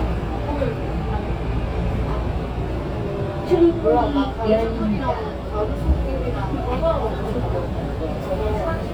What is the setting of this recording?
subway train